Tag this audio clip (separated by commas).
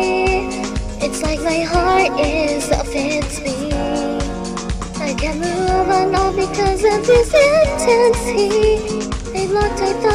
Music, Soul music